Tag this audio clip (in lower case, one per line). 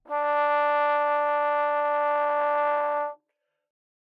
brass instrument
music
musical instrument